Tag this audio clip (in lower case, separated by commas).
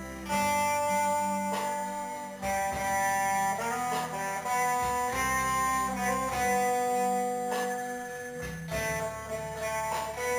strum, electric guitar, plucked string instrument, musical instrument, music, guitar